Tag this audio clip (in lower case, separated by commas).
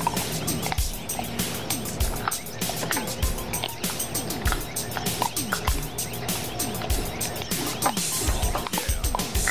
music